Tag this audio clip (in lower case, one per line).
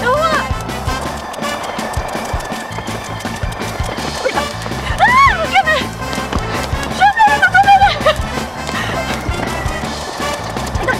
rope skipping